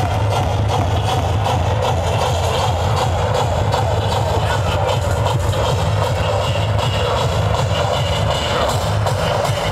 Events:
0.0s-9.7s: crowd
0.0s-9.7s: motor vehicle (road)
0.0s-9.7s: music
0.2s-0.3s: clapping
0.6s-0.7s: clapping
1.0s-1.1s: clapping
2.4s-2.6s: human voice
4.3s-4.5s: human voice
6.8s-7.0s: human voice
7.6s-7.8s: human voice
8.3s-8.5s: human voice

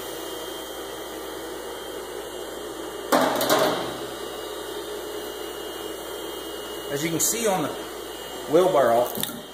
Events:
0.0s-9.5s: mechanisms
3.1s-3.9s: generic impact sounds
6.8s-7.8s: man speaking
8.4s-9.1s: man speaking
9.2s-9.3s: tick

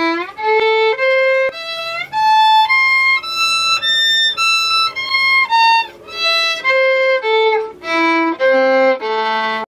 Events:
0.0s-9.6s: mechanisms
0.0s-9.6s: music
0.5s-0.5s: tick

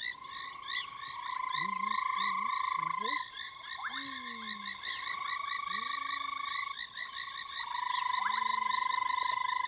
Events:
0.0s-9.6s: croak
0.0s-9.6s: wind
0.0s-9.6s: insect
0.2s-0.6s: chirp
1.5s-2.0s: human voice
2.0s-2.2s: chirp
2.1s-2.5s: human voice
2.8s-3.1s: human voice
3.9s-4.8s: human voice
5.7s-6.4s: human voice
7.0s-8.3s: chirp
8.2s-8.8s: human voice
9.2s-9.4s: generic impact sounds

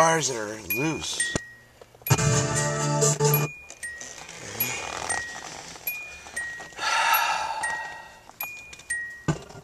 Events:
0.0s-1.4s: man speaking
0.0s-9.6s: mechanisms
0.7s-1.8s: bleep
1.3s-1.4s: generic impact sounds
1.8s-2.0s: generic impact sounds
2.0s-3.5s: music
2.1s-2.9s: bleep
3.3s-4.2s: bleep
3.7s-6.7s: surface contact
4.6s-5.5s: bleep
5.9s-6.8s: bleep
6.3s-8.2s: breathing
7.6s-7.8s: surface contact
7.6s-8.2s: bleep
8.2s-9.0s: surface contact
8.4s-8.5s: generic impact sounds
8.4s-9.3s: bleep
8.7s-9.0s: generic impact sounds

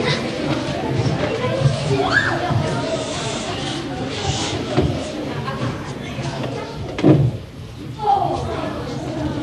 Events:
0.0s-0.2s: human voice
0.0s-9.4s: background noise
0.5s-0.6s: generic impact sounds
0.6s-0.9s: human voice
1.0s-1.1s: generic impact sounds
1.3s-1.7s: speech
1.9s-2.5s: shout
1.9s-2.8s: speech
2.9s-3.8s: surface contact
3.0s-3.7s: speech
4.1s-4.6s: surface contact
4.7s-5.0s: generic impact sounds
5.3s-5.8s: human voice
6.0s-6.8s: speech
6.2s-6.5s: generic impact sounds
6.8s-7.1s: generic impact sounds
8.0s-9.4s: speech

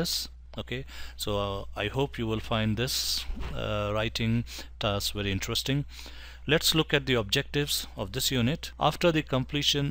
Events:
0.0s-0.3s: male speech
0.0s-9.9s: background noise
0.5s-0.6s: tick
0.5s-0.9s: male speech
0.9s-1.1s: breathing
1.1s-3.2s: male speech
1.9s-2.0s: tick
3.2s-3.5s: generic impact sounds
3.6s-4.4s: male speech
4.5s-4.7s: breathing
4.8s-5.8s: male speech
5.9s-6.5s: breathing
6.5s-9.9s: male speech

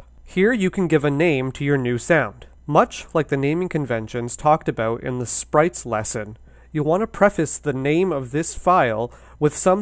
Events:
0.0s-9.8s: mechanisms
0.2s-2.4s: male speech
2.6s-5.4s: male speech
3.0s-3.2s: clicking
5.5s-6.3s: male speech
6.4s-6.7s: breathing
6.7s-9.0s: male speech
9.1s-9.4s: breathing
9.4s-9.8s: male speech

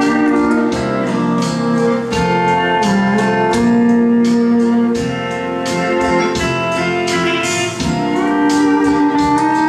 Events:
0.0s-9.6s: music

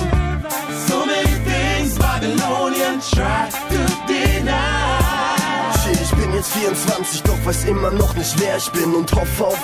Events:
0.0s-5.7s: male singing
0.0s-9.6s: music
5.7s-9.6s: rapping

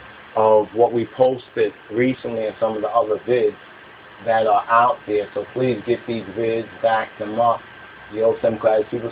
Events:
0.0s-9.1s: mechanisms
0.3s-1.7s: male speech
1.9s-3.6s: male speech
4.2s-4.9s: male speech
5.1s-6.7s: male speech
6.8s-7.1s: male speech
7.2s-7.6s: male speech
8.1s-9.1s: male speech

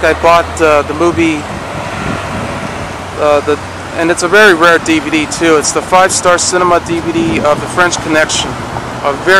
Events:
0.0s-1.4s: man speaking
0.0s-9.3s: vehicle
3.1s-3.5s: man speaking
3.9s-7.6s: man speaking
7.7s-8.5s: man speaking

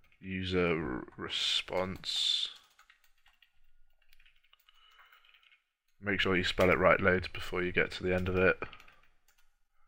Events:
0.0s-0.2s: computer keyboard
0.2s-2.7s: male speech
1.7s-2.0s: computer keyboard
2.4s-3.7s: computer keyboard
3.9s-5.6s: computer keyboard
4.7s-5.7s: breathing
5.8s-6.0s: computer keyboard
6.0s-7.3s: male speech
6.6s-6.7s: computer keyboard
7.4s-8.7s: male speech
8.2s-8.5s: computer keyboard
8.6s-9.1s: breathing
8.7s-9.1s: computer keyboard
9.3s-9.5s: computer keyboard
9.8s-9.8s: surface contact

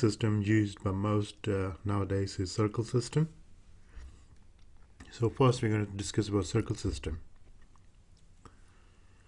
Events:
0.0s-3.3s: male speech
0.0s-9.2s: noise
5.2s-7.2s: male speech

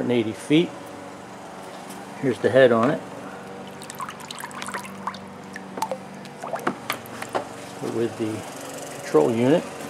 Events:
0.0s-9.8s: mechanisms
0.0s-0.7s: man speaking
0.3s-0.5s: surface contact
1.7s-2.0s: generic impact sounds
2.2s-3.0s: man speaking
2.8s-2.9s: generic impact sounds
3.7s-5.2s: pump (liquid)
5.4s-5.6s: pump (liquid)
5.8s-5.9s: pump (liquid)
6.1s-6.5s: generic impact sounds
6.4s-6.6s: pump (liquid)
6.6s-6.7s: generic impact sounds
6.9s-7.0s: generic impact sounds
7.1s-7.4s: generic impact sounds
7.5s-7.9s: surface contact
7.8s-8.4s: man speaking
9.0s-9.6s: man speaking

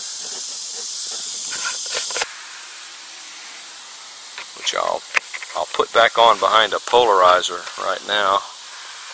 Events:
0.0s-9.1s: insect
0.0s-9.1s: noise
0.2s-0.5s: generic impact sounds
0.7s-0.8s: generic impact sounds
1.0s-1.3s: generic impact sounds
1.4s-1.7s: generic impact sounds
1.8s-2.2s: generic impact sounds
4.3s-4.4s: generic impact sounds
4.5s-5.0s: male speech
5.1s-5.2s: tick
5.3s-5.4s: generic impact sounds
5.5s-8.4s: male speech
7.6s-7.7s: generic impact sounds
9.0s-9.1s: generic impact sounds

